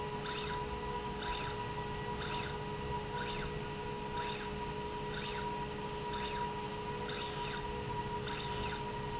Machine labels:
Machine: slide rail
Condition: normal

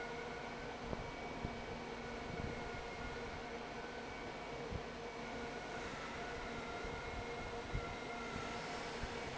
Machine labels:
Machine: fan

